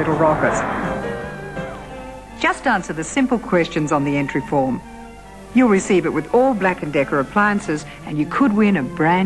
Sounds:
Music, Speech

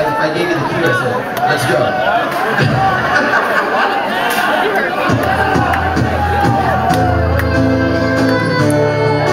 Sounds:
Music, Speech

